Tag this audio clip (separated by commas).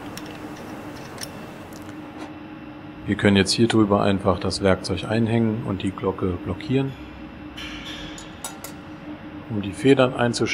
Speech